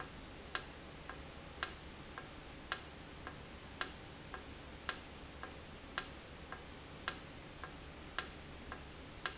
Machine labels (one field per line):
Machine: valve